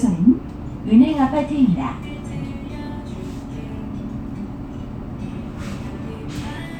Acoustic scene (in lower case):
bus